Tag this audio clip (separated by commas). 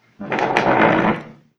Wild animals, Animal